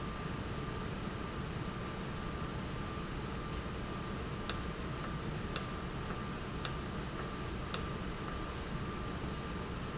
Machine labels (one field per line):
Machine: valve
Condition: normal